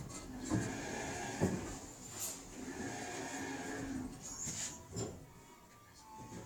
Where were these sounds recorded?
in an elevator